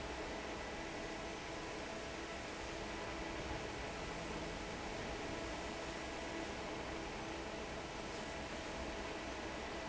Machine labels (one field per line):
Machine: fan